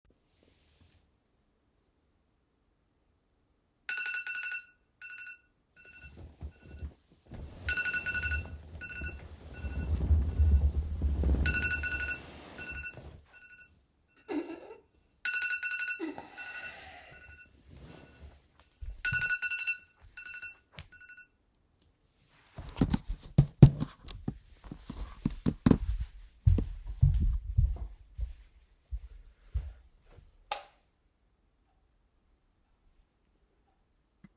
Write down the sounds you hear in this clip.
phone ringing, footsteps, light switch